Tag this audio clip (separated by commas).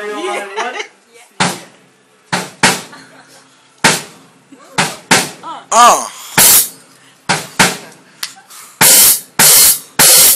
Speech, Music, Musical instrument, Drum